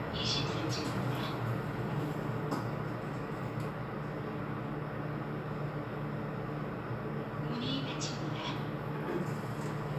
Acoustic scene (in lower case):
elevator